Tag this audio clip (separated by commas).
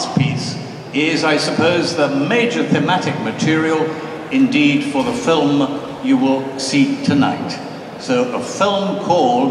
Speech